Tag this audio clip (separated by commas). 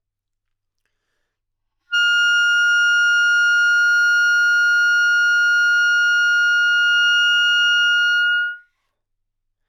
Musical instrument, Wind instrument, Music